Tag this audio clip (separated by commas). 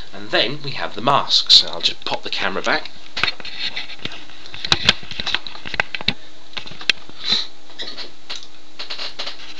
Speech